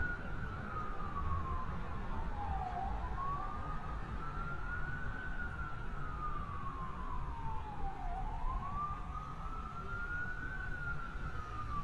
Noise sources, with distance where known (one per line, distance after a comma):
siren, far